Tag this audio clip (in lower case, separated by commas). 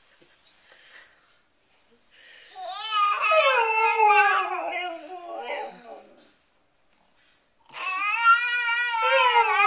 baby babbling